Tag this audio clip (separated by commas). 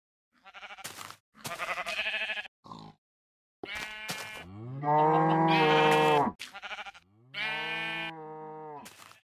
Sheep, Bleat